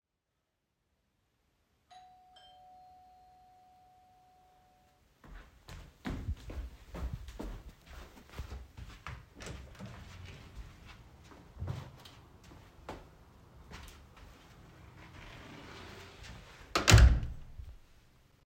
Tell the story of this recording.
I heard the bell ringing and walked fast to open the door. After my guest entered the house I closed the door.